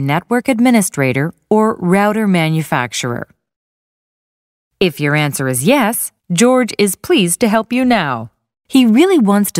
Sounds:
Speech

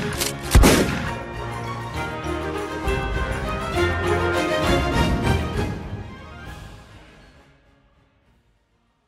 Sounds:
Music

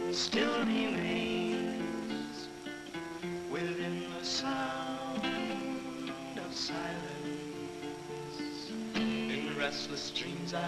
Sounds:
Music

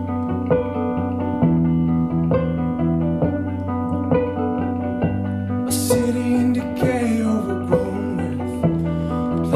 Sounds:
Bowed string instrument, Music, Musical instrument, Violin

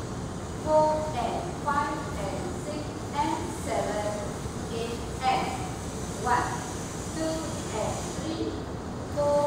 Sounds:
Speech

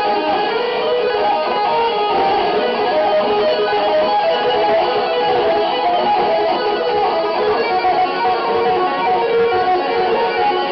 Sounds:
Guitar, Musical instrument, Plucked string instrument, Music

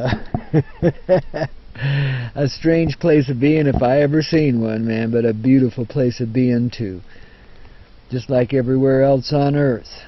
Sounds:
Speech

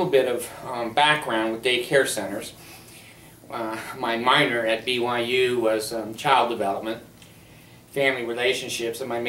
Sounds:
Speech

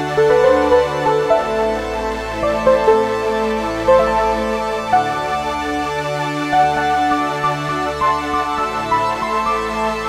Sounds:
Music

